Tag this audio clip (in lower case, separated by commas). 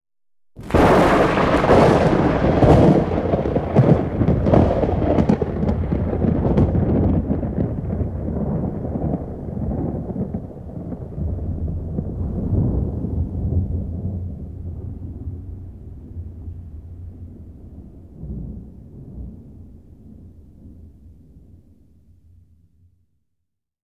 thunderstorm, thunder